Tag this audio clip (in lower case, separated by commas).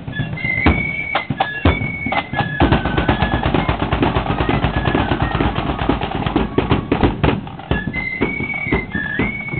flute, music